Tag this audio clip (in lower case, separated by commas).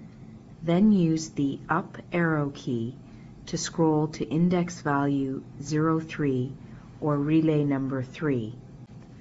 speech